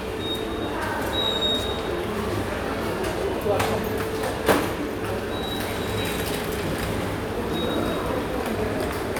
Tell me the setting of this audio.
subway station